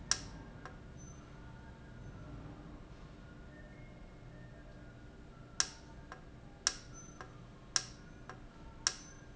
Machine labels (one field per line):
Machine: valve